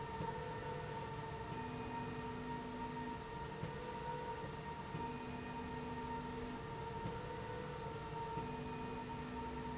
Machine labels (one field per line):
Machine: slide rail